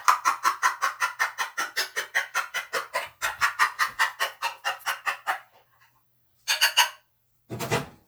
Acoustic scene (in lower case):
kitchen